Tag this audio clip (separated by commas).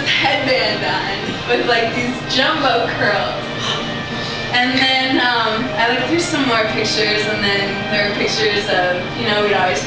Female speech, Speech, monologue, Music